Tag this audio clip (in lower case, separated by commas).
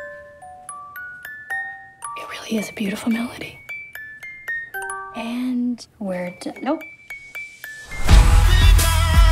inside a small room, ding-dong, glockenspiel, music